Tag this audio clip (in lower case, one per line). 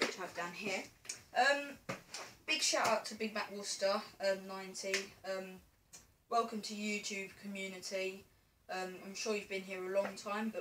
speech